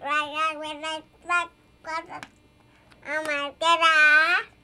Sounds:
Speech, Human voice

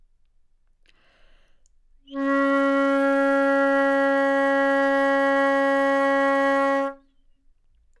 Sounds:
woodwind instrument, Music, Musical instrument

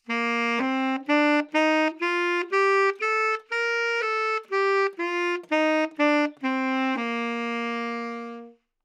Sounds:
Musical instrument, Music, Wind instrument

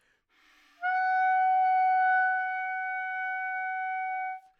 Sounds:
Musical instrument, Wind instrument, Music

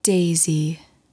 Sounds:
Human voice, woman speaking, Speech

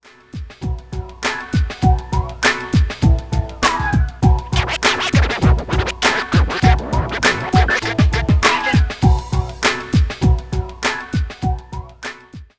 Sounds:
Music, Musical instrument, Scratching (performance technique)

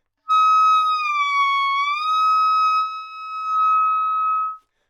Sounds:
Wind instrument, Music, Musical instrument

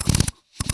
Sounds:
Drill, Tools, Power tool

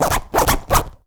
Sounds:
home sounds, Zipper (clothing)

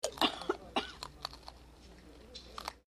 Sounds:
Cough, Chewing, Respiratory sounds

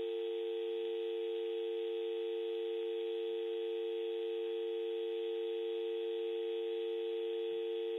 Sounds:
Telephone, Alarm

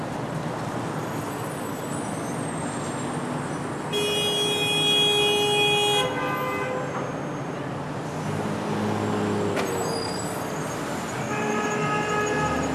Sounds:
Traffic noise, Motor vehicle (road), Alarm, Vehicle, Car, honking

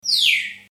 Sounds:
Wild animals, Animal, Bird

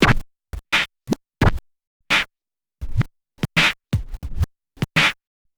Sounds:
Scratching (performance technique), Musical instrument, Music

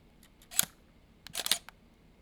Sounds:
Camera, Mechanisms

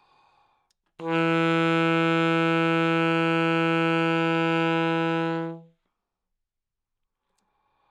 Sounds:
Wind instrument, Musical instrument, Music

